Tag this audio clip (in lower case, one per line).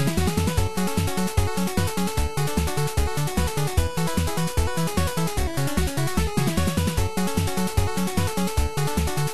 video game music
music
soundtrack music